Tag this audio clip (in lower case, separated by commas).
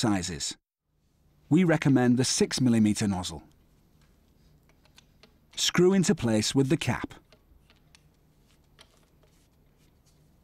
speech